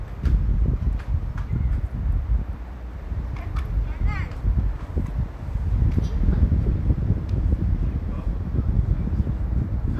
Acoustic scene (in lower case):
residential area